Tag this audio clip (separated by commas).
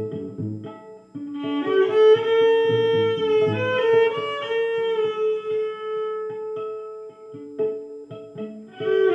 Music, Violin, Musical instrument